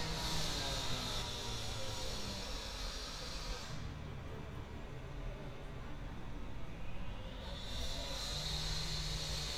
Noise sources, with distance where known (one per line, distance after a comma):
large rotating saw